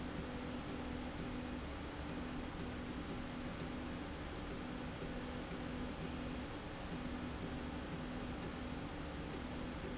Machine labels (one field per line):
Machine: slide rail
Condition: normal